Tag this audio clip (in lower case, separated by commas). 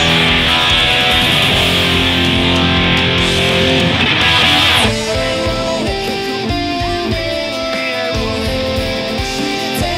music, guitar, musical instrument, plucked string instrument, electric guitar